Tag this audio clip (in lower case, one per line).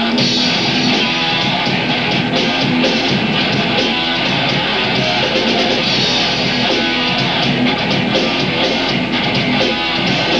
music